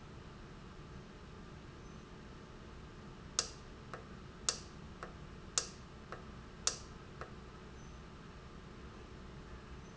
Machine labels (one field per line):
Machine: valve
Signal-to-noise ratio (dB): 6 dB